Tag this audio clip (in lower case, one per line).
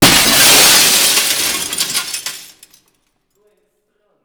shatter
glass